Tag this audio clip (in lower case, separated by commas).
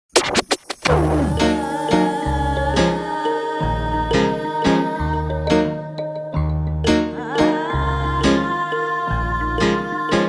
inside a large room or hall, music